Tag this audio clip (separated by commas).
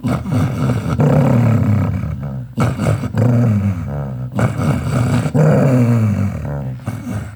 Domestic animals, Animal, Growling, Dog